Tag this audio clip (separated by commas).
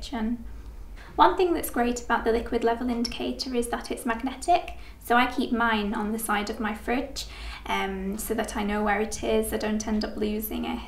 Speech